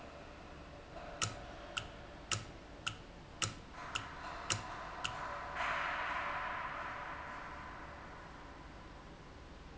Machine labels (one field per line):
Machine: valve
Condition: normal